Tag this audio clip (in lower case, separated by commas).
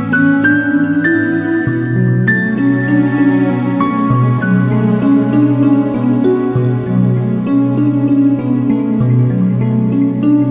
music, new-age music